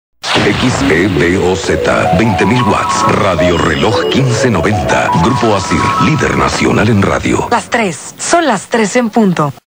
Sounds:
Speech, Music, Radio

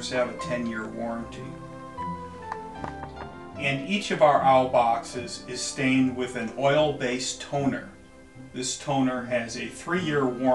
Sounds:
Music, Sound effect, Speech

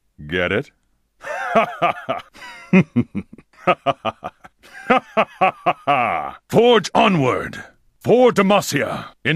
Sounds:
Speech

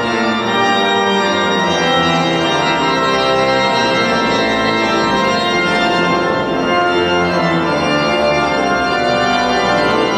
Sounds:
playing electronic organ

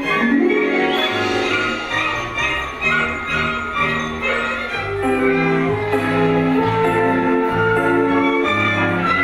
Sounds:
Music

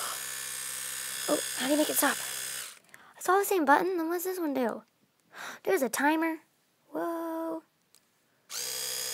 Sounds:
Electric toothbrush, Speech

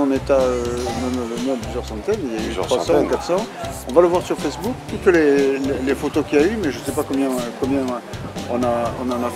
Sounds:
Speech, Music

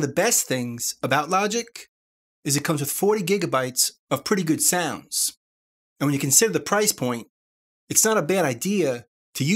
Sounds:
Speech

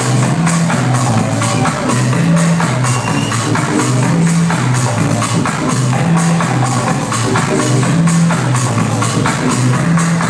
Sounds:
Music, Funk

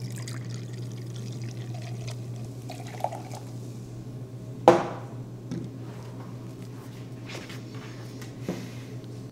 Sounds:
inside a small room

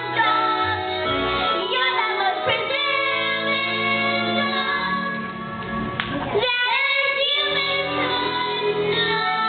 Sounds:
Music

